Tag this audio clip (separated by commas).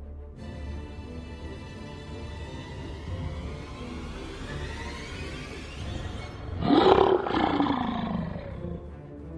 inside a large room or hall, Music